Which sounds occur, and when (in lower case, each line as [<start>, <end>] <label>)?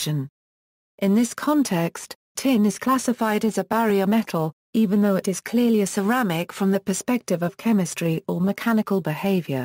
[0.00, 0.32] speech synthesizer
[0.98, 2.18] speech synthesizer
[2.39, 4.55] speech synthesizer
[4.77, 9.64] speech synthesizer